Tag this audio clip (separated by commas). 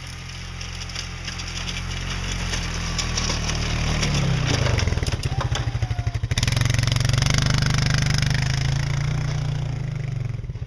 Idling, Vehicle